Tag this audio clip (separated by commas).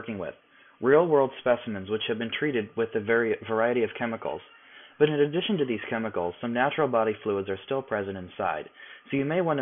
Speech